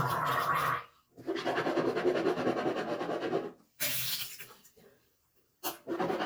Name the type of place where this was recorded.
restroom